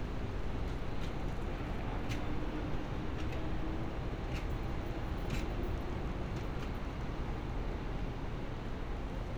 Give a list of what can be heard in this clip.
engine of unclear size